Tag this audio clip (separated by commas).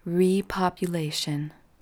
Speech, Female speech, Human voice